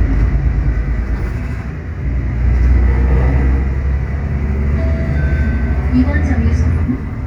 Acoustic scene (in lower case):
bus